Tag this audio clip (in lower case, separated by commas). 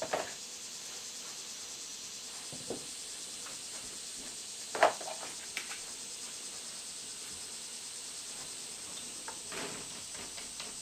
opening or closing car electric windows